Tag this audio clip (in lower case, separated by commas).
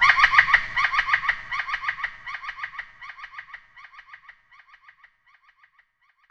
animal, bird song, wild animals, bird